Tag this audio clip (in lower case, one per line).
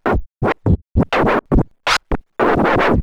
music
scratching (performance technique)
musical instrument